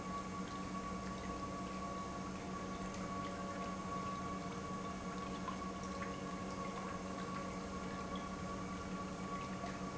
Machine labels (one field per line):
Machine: pump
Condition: normal